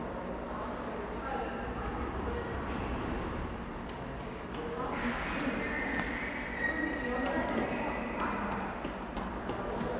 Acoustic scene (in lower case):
subway station